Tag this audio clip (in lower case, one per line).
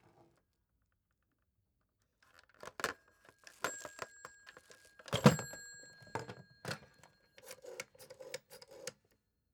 alarm
telephone